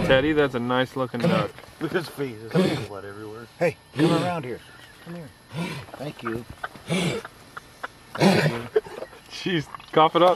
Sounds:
speech, animal

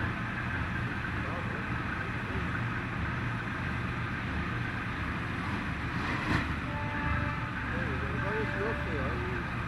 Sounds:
vehicle, boat, speech

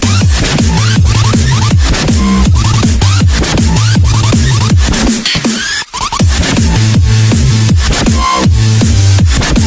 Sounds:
dubstep, music

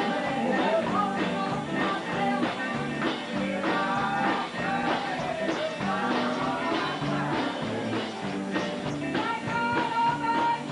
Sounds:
music, female singing, choir

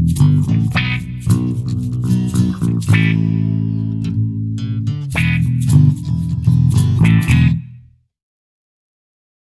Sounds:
plucked string instrument, acoustic guitar, musical instrument, electric guitar, strum, music, guitar

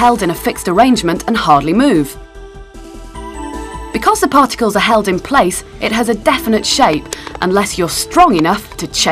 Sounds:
speech, music

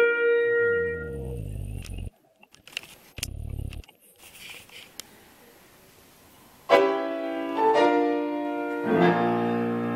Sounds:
piano, keyboard (musical), clarinet

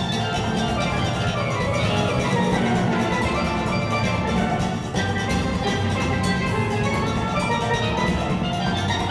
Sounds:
playing steelpan

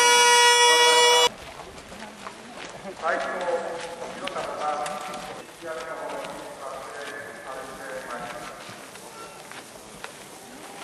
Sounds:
outside, rural or natural, speech

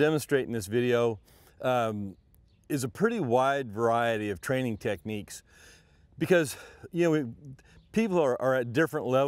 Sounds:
speech

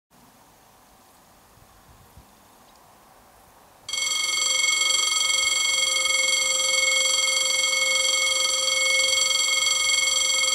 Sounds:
rail transport, vehicle, train, railroad car

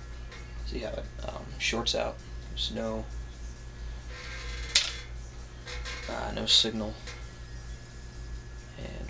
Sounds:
speech, inside a small room

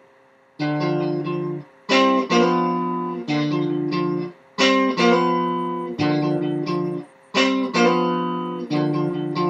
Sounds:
guitar, music

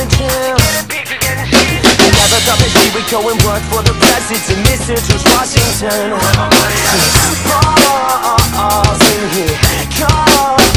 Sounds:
music

